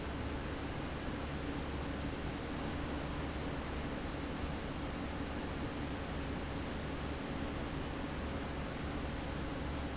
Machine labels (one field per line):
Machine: fan